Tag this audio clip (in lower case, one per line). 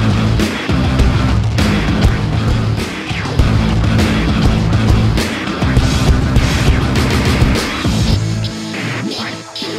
music